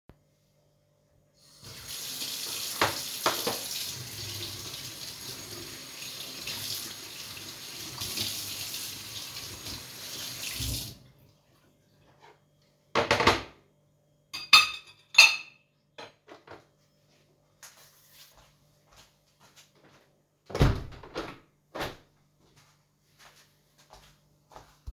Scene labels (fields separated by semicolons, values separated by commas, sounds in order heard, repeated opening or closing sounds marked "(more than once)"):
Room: kitchen; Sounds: running water, cutlery and dishes, footsteps, window